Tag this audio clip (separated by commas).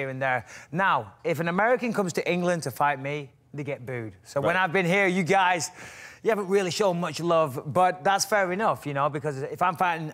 people booing